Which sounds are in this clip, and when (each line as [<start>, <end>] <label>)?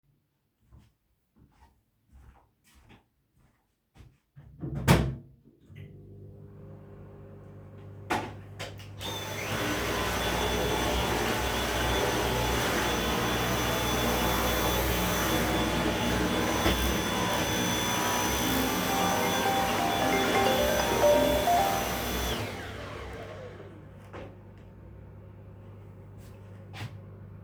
[0.68, 4.28] footsteps
[4.52, 27.43] microwave
[8.03, 23.98] vacuum cleaner
[18.39, 22.10] phone ringing
[26.05, 27.02] footsteps